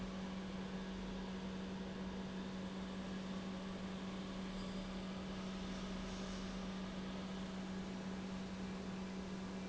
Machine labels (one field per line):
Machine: pump